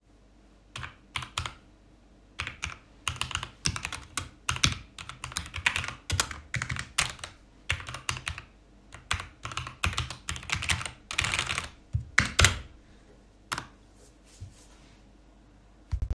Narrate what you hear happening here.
The phone remained on the desk while I walked to the keyboard and typed for a short moment.